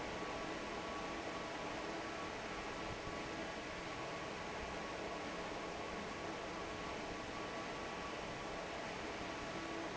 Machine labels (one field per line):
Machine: fan